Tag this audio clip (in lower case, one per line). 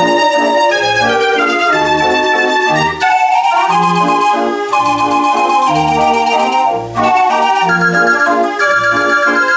musical instrument
music